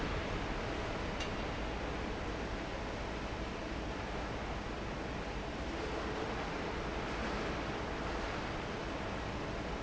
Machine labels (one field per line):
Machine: fan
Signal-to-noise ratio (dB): -6 dB